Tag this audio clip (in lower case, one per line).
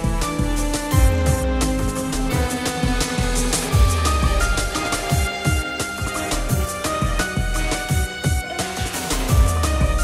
music